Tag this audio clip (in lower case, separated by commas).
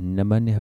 speech, human voice